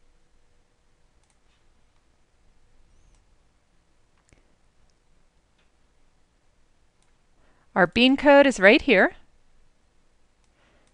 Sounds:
Speech

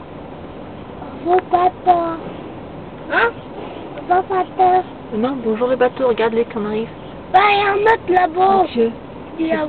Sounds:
Speech

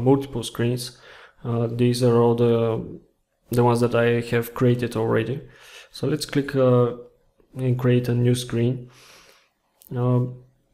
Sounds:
Speech

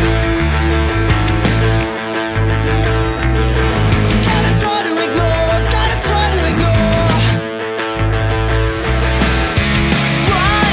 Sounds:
Grunge, Rock music, Musical instrument, Music

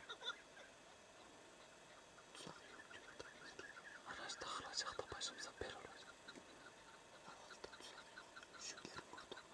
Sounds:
Speech

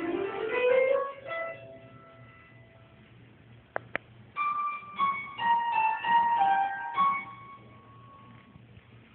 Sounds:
Music, Theme music

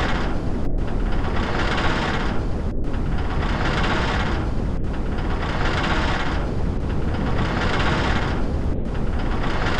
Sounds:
Vehicle, Boat

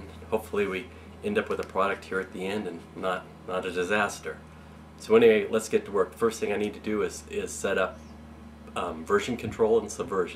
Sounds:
Speech

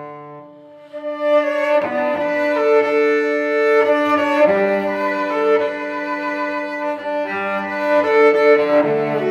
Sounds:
Cello, fiddle, playing cello, Music

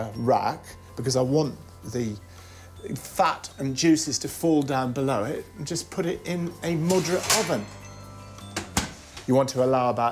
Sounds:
Music, Speech

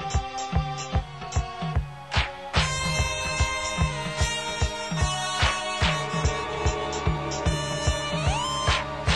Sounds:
Music

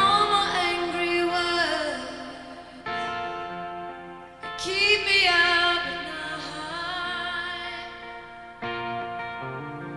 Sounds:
Music

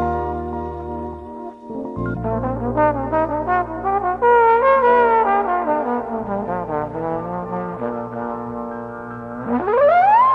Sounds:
playing trombone

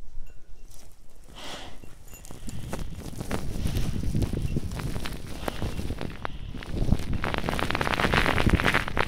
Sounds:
volcano explosion

